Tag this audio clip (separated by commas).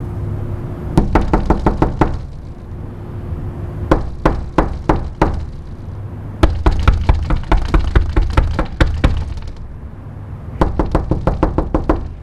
Knock, Domestic sounds, Door